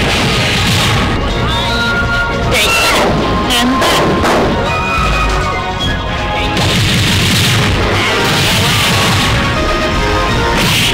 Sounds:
Music, Speech

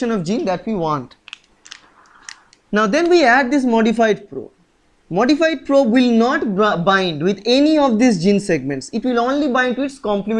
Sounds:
Speech

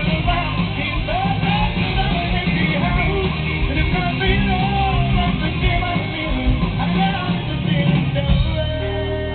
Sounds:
Music

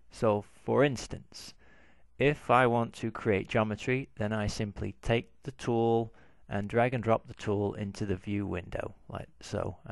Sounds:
Speech

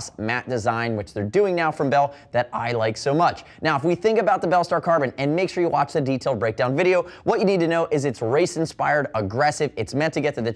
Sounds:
Speech

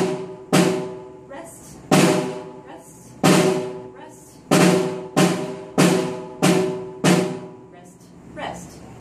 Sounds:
Drum, Rimshot, Percussion, playing snare drum, Snare drum

